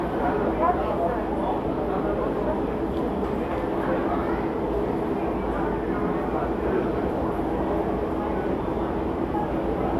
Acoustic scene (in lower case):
crowded indoor space